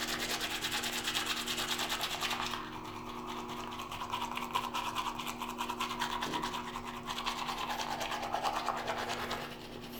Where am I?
in a restroom